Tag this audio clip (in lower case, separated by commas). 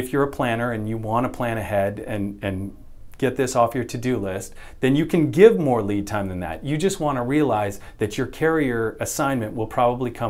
speech